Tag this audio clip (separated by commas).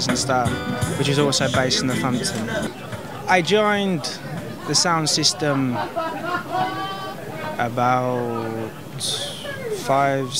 Speech, Chatter, Music